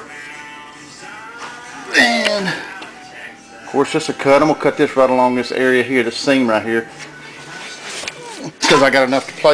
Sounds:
Music, Speech

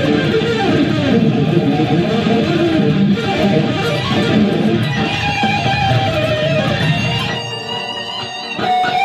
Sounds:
Music, Strum, Electric guitar, Plucked string instrument, Guitar, Musical instrument

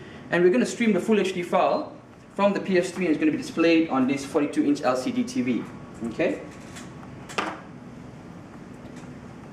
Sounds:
Speech, inside a small room

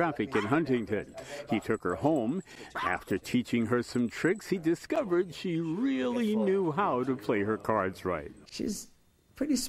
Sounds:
Speech, Bow-wow

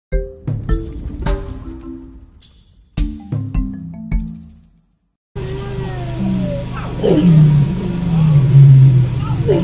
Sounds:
lions roaring

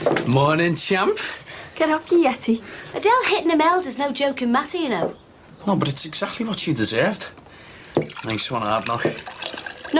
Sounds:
Speech, inside a small room

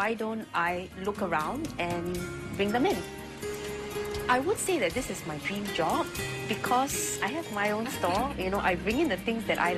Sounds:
Speech, Music

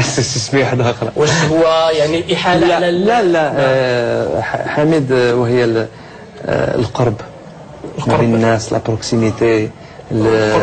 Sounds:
Speech

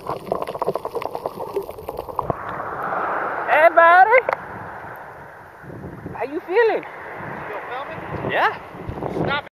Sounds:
Speech

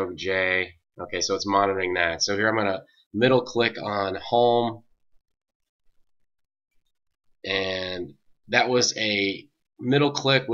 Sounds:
Speech

